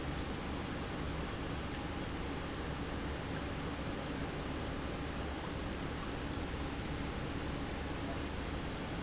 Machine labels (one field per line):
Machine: pump